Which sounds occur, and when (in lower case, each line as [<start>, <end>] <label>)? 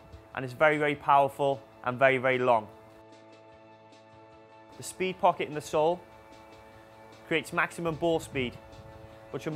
[0.00, 9.55] music
[0.29, 1.59] man speaking
[1.79, 2.66] man speaking
[4.69, 5.96] man speaking
[6.50, 6.82] breathing
[7.27, 8.51] man speaking
[7.76, 9.06] wind noise (microphone)